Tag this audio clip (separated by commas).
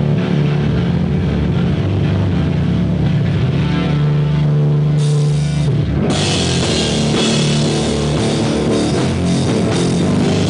Guitar, Heavy metal, Percussion, Cymbal, Musical instrument, Drum kit, Bass drum, Plucked string instrument, Drum, Music